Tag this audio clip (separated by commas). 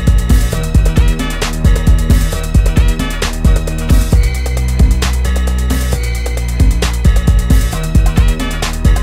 Music